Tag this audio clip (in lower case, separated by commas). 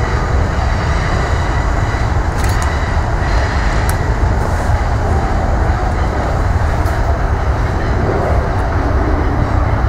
train, railroad car, rail transport